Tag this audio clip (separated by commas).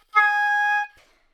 Musical instrument, Wind instrument, Music